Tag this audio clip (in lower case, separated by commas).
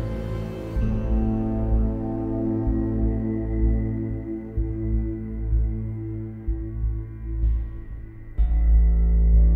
music